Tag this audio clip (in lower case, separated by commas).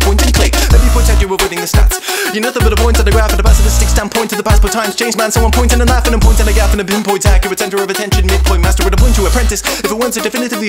rapping